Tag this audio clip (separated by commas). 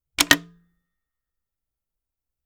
Alarm, Telephone